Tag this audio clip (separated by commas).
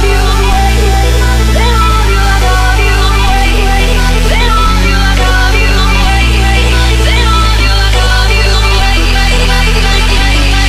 Electronic music, Music, Dubstep